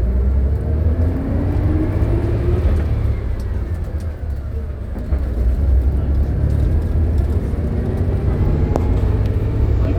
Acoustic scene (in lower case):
bus